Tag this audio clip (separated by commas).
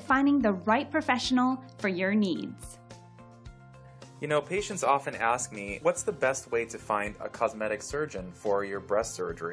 Speech, Music